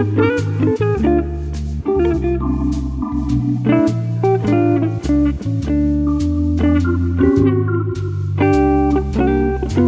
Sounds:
guitar, acoustic guitar, electric guitar, strum, musical instrument, bass guitar, music, playing bass guitar, plucked string instrument

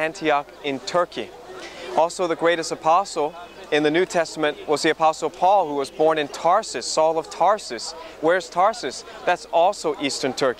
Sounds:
speech

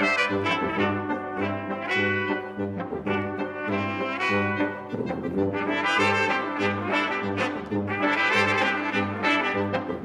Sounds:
trombone, trumpet, jazz, music, brass instrument, musical instrument

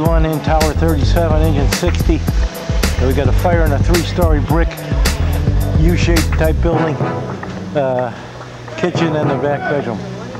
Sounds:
speech, music

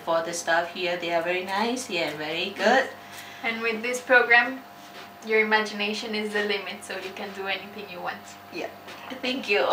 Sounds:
speech, woman speaking

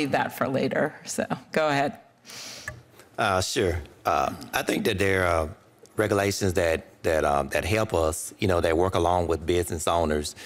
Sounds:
speech

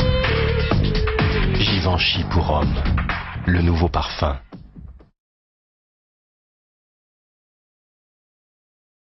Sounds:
music, speech

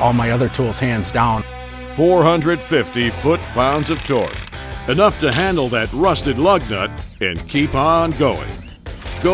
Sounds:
tools, music, speech

